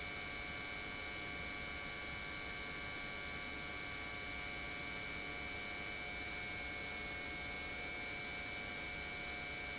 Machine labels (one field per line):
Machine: pump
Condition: normal